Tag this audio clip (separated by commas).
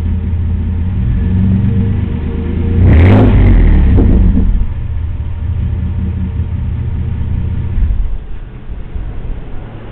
outside, urban or man-made